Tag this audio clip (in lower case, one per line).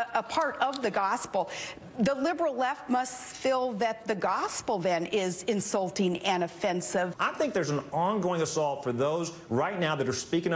speech